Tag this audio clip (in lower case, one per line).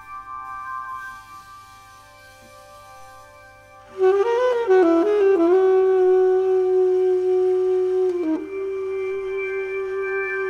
inside a large room or hall
music